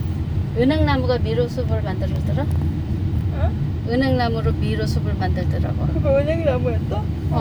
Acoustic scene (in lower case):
car